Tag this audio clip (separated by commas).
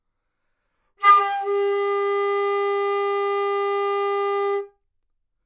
Music, woodwind instrument, Musical instrument